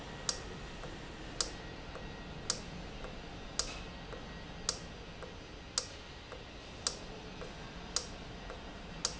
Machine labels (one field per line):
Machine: valve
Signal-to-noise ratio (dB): 0 dB